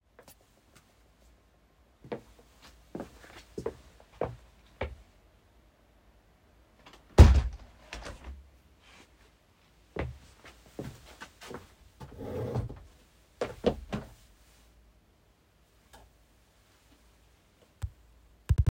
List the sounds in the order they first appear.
footsteps, window